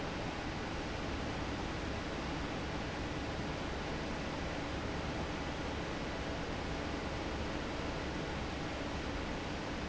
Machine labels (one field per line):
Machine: fan